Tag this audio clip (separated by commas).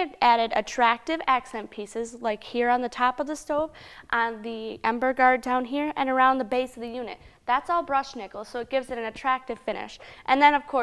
Speech